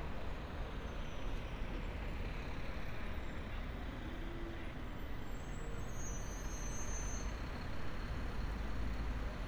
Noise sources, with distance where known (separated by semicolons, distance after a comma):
large-sounding engine